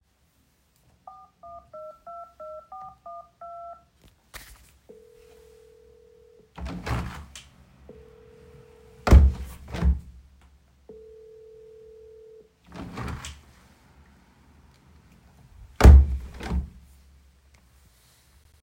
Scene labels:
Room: kitchen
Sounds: phone ringing, window (more than once)

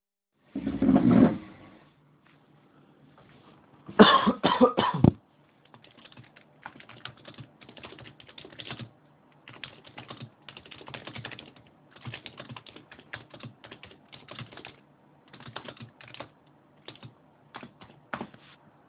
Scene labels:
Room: living room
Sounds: keyboard typing

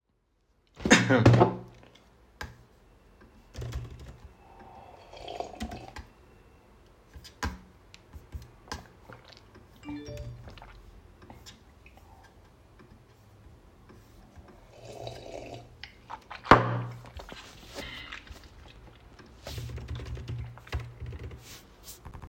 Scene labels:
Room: office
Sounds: keyboard typing, phone ringing

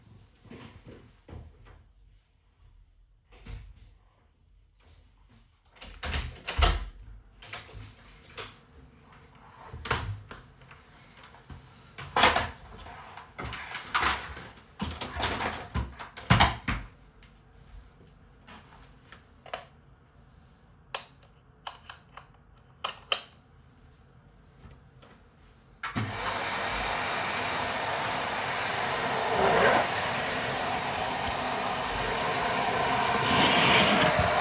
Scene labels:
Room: bedroom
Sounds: footsteps, door (more than once), keys, light switch, vacuum cleaner

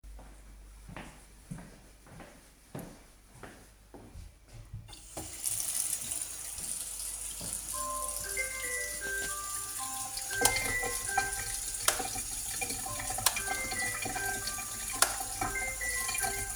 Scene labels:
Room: kitchen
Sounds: footsteps, running water, phone ringing, light switch

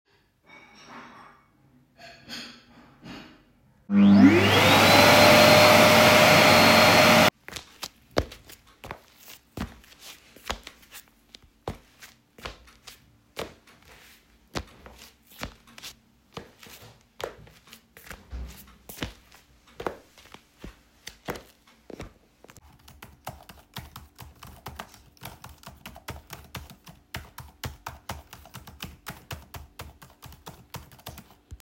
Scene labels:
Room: kitchen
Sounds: cutlery and dishes, vacuum cleaner, footsteps, keyboard typing

